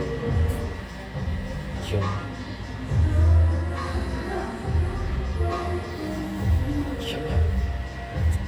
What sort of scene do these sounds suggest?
cafe